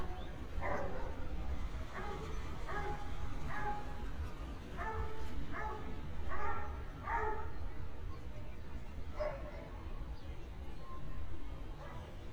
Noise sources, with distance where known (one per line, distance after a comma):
person or small group talking, far
dog barking or whining, near